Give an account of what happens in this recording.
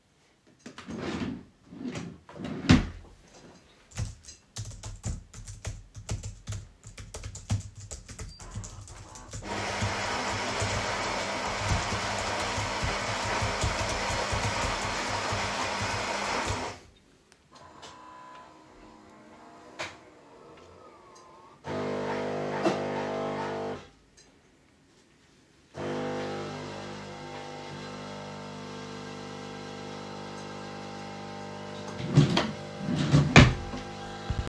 I opened a drawer and closed it again. Then I started typing on the keyboard. While typing somebody started the coffee_machine in the kitchen. Later while waiting for the coffee I opened another drawer.